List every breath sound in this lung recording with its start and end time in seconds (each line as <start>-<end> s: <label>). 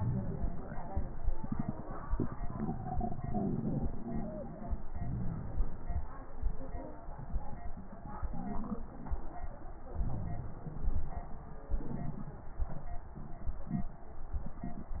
0.00-0.87 s: inhalation
4.98-6.10 s: inhalation
9.96-11.25 s: inhalation